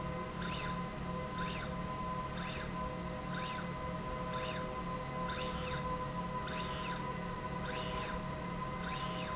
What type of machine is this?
slide rail